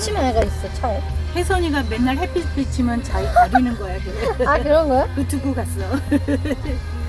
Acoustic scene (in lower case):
car